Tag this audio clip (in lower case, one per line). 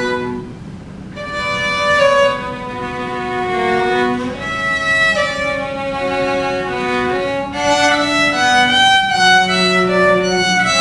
violin
musical instrument
music